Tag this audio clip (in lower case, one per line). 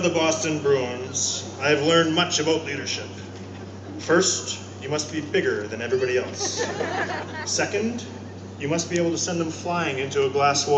man speaking
monologue
speech